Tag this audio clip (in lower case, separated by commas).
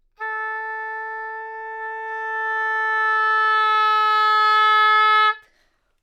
woodwind instrument, music, musical instrument